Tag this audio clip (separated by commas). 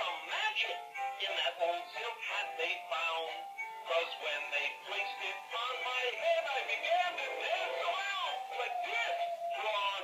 Music, Male singing